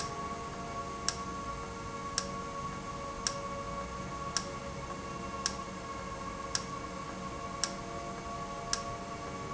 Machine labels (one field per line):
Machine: valve